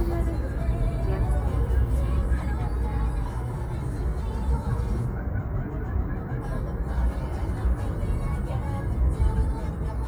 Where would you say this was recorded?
in a car